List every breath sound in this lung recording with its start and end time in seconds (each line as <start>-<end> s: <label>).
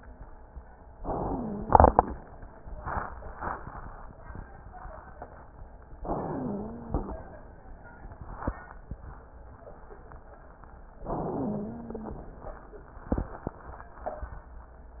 1.00-2.09 s: inhalation
1.16-2.09 s: wheeze
5.97-7.19 s: inhalation
6.21-7.19 s: wheeze
11.05-12.29 s: inhalation
11.27-12.29 s: wheeze